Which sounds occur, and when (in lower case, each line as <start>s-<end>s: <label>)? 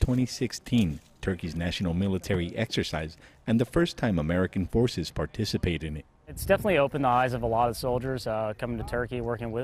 0.0s-9.6s: wind
0.0s-0.9s: man speaking
0.6s-1.3s: generic impact sounds
1.2s-3.1s: man speaking
3.2s-3.4s: breathing
3.4s-6.0s: man speaking
6.2s-9.6s: man speaking
6.3s-6.8s: wind noise (microphone)
7.3s-8.1s: wind noise (microphone)
8.7s-9.0s: wind noise (microphone)